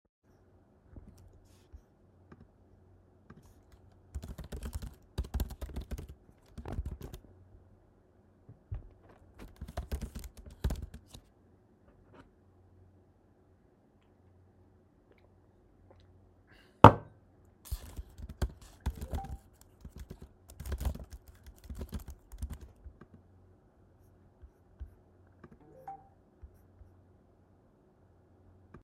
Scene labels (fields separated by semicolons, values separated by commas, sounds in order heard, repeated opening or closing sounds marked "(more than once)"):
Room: bedroom; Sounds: keyboard typing, cutlery and dishes, phone ringing